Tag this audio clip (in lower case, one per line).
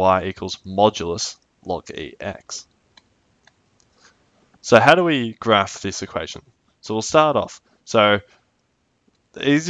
clicking
speech